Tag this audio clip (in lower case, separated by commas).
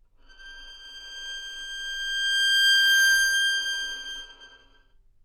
music, bowed string instrument, musical instrument